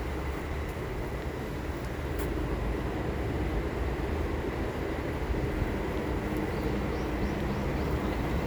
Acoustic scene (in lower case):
park